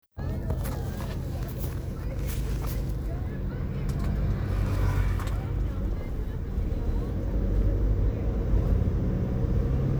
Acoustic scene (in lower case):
car